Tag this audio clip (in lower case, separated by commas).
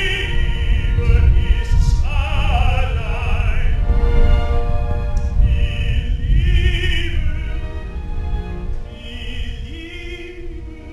opera, music